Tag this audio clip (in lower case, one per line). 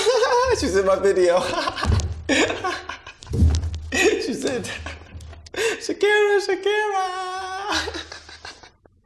inside a small room
speech